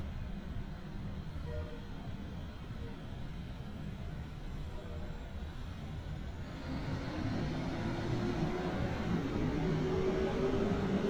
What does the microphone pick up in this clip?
large-sounding engine